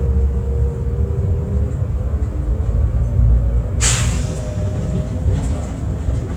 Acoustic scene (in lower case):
bus